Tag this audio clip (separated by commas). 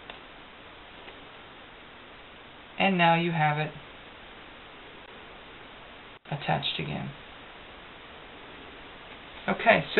Speech, inside a small room